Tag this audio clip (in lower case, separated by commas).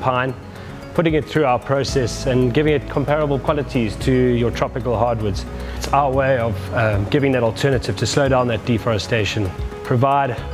music, speech